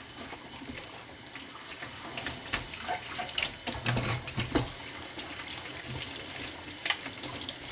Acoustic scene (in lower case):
kitchen